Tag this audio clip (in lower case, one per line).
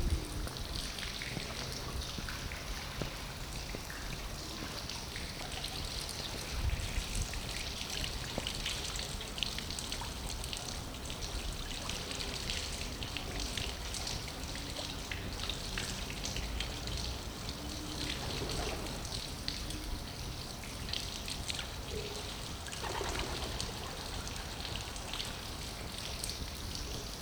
animal
bird
wild animals